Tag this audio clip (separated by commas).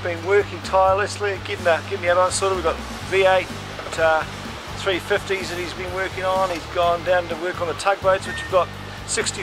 Speech, Music